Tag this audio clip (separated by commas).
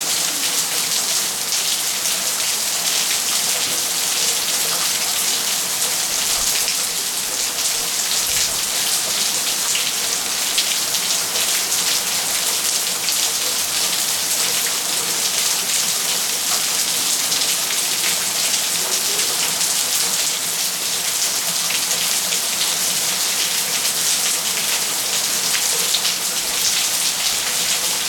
Water, Rain